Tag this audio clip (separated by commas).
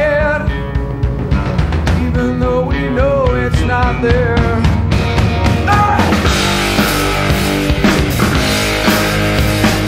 Music